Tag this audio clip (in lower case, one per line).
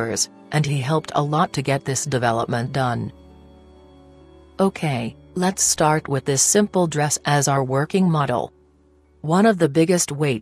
music
speech